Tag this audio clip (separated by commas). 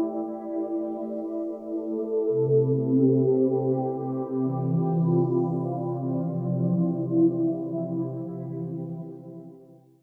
Ambient music, Music